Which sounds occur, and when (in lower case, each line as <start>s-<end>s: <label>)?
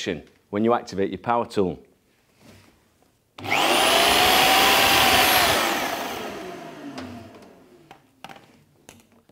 0.0s-0.2s: man speaking
0.0s-9.3s: background noise
0.2s-0.4s: generic impact sounds
0.5s-1.8s: man speaking
1.8s-1.9s: tick
2.2s-2.8s: generic impact sounds
3.0s-3.1s: tick
3.4s-7.8s: power tool
6.9s-7.0s: generic impact sounds
7.3s-7.4s: generic impact sounds
7.9s-8.0s: generic impact sounds
8.2s-8.6s: generic impact sounds
8.8s-9.3s: generic impact sounds